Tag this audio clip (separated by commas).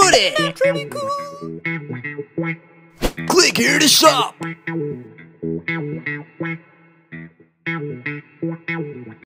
Speech, Music